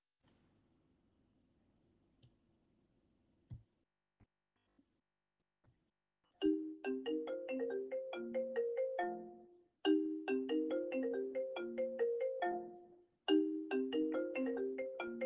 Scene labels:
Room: bedroom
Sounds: phone ringing

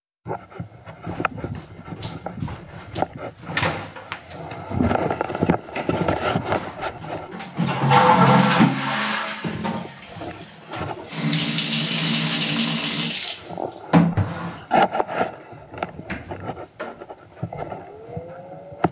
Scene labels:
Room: bathroom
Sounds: footsteps, light switch, toilet flushing, running water

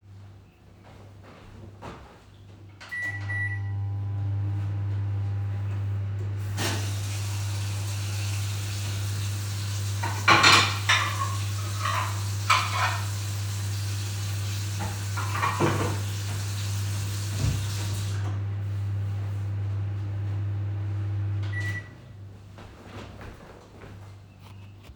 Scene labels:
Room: kitchen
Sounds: footsteps, microwave, running water, cutlery and dishes

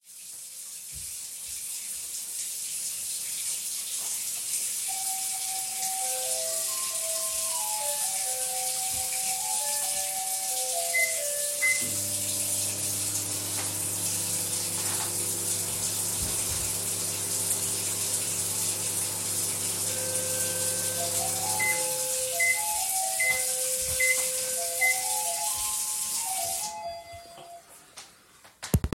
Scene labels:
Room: kitchen, hallway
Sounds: running water, bell ringing, microwave

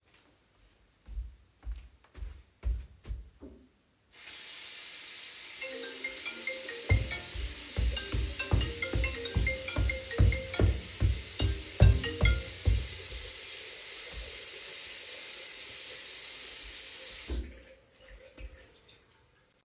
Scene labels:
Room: bathroom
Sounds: footsteps, running water, phone ringing

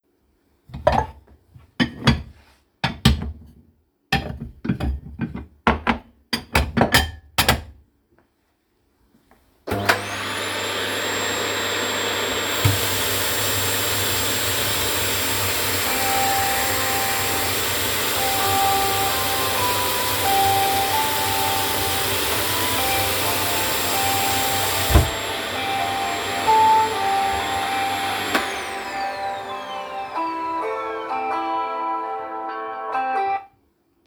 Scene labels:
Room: kitchen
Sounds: cutlery and dishes, vacuum cleaner, running water, phone ringing

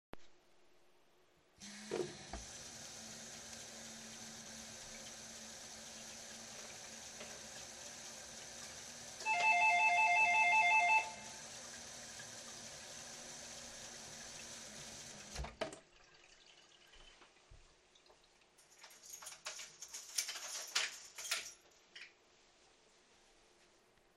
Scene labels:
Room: kitchen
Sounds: running water, bell ringing, keys

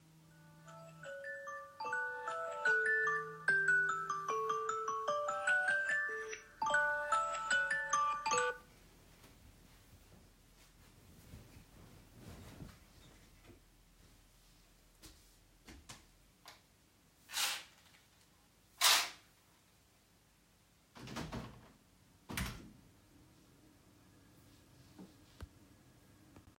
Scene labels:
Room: bedroom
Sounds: phone ringing, footsteps, door

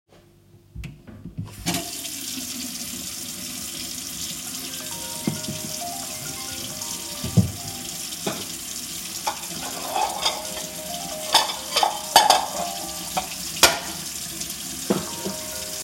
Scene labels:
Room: kitchen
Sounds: running water, phone ringing, cutlery and dishes

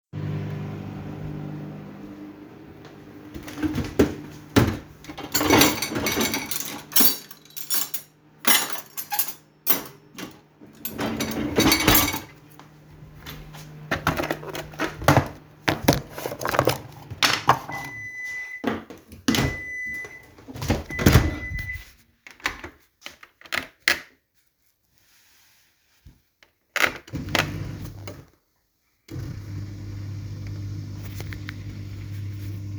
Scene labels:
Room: kitchen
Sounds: microwave, cutlery and dishes, wardrobe or drawer (more than once)

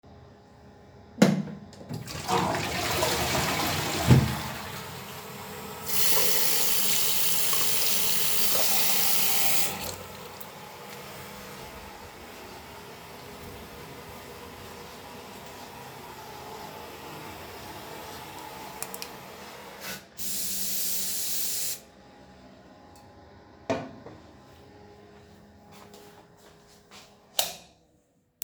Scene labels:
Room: bathroom, hallway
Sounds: light switch, toilet flushing, running water, footsteps

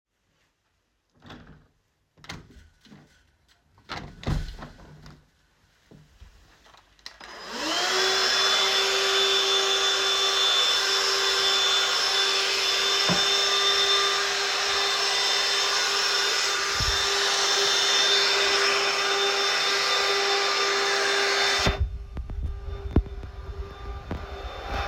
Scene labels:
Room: living room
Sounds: window, vacuum cleaner

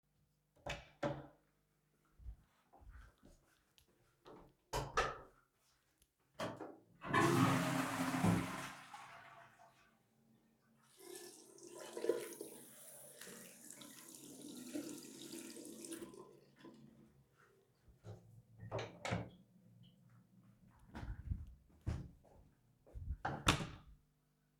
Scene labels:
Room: bathroom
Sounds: door (more than once), toilet flushing, running water, footsteps

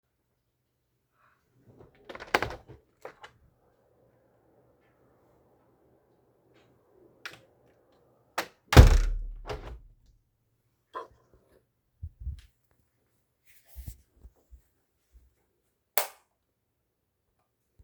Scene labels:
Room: bedroom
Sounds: window (more than once), light switch

